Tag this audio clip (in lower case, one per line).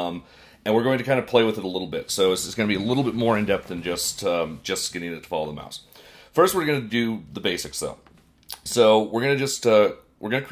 speech